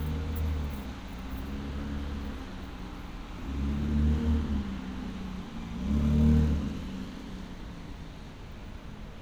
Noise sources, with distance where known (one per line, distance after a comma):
medium-sounding engine